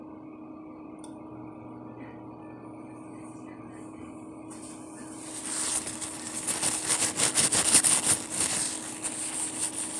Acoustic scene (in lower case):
kitchen